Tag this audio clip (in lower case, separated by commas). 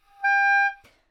wind instrument, musical instrument, music